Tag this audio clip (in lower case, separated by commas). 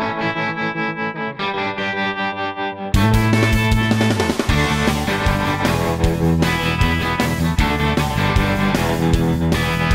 music